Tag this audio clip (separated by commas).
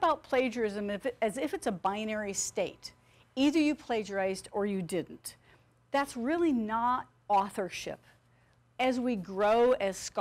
Speech